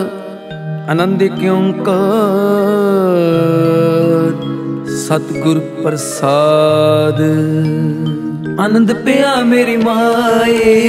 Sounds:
Mantra

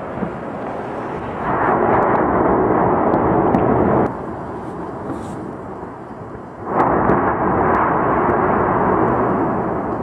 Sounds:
volcano explosion

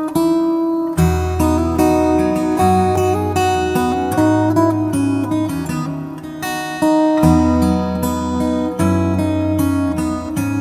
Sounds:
Music

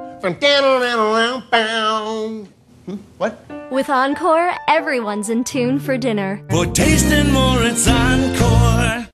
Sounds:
Speech, Music

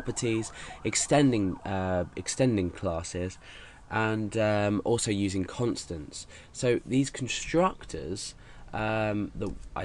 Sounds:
Police car (siren)

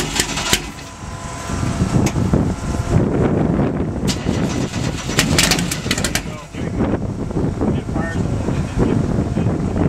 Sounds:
Vehicle, Motor vehicle (road), Car passing by, Car, Speech

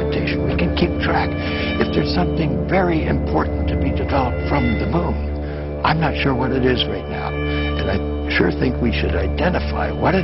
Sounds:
Music, Speech

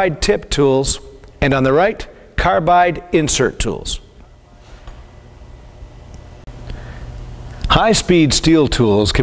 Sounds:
Speech

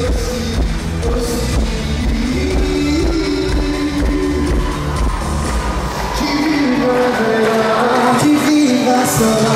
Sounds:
Music

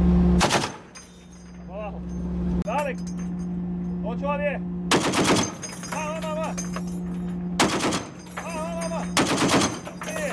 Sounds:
machine gun shooting

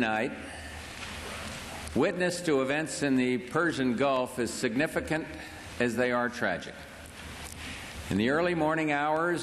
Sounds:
man speaking, Speech

